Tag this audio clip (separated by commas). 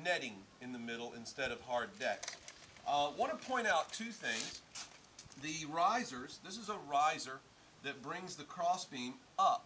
Speech